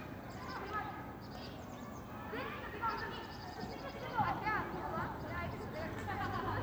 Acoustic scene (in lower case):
park